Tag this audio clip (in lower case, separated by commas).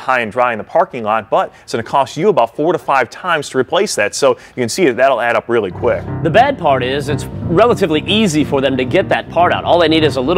speech, music